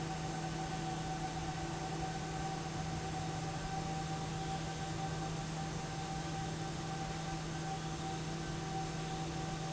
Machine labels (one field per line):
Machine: fan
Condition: abnormal